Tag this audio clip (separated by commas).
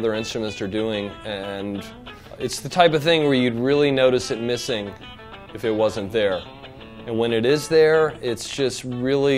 Electric guitar, Music, Speech